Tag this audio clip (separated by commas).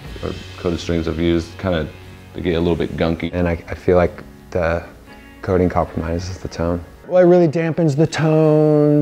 Speech, Musical instrument, Strum, Music, Guitar, Plucked string instrument